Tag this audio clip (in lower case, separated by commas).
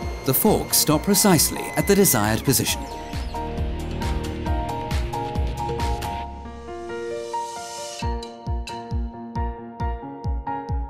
music, speech